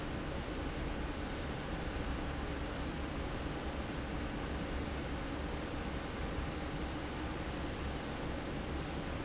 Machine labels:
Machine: fan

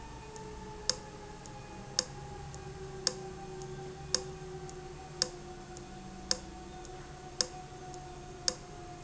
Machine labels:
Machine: valve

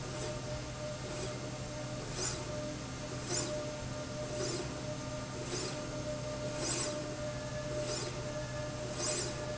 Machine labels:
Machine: slide rail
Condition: normal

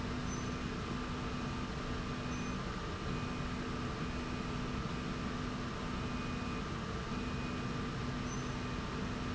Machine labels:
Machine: slide rail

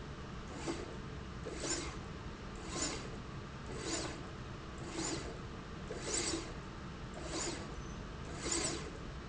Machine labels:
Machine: slide rail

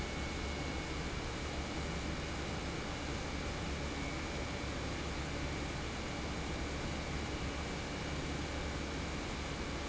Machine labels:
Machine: pump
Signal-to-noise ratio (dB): -6 dB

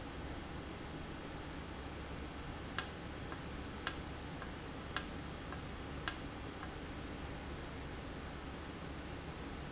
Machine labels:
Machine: valve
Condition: normal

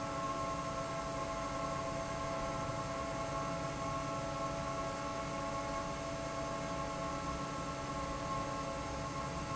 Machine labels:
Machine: fan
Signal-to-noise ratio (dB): -6 dB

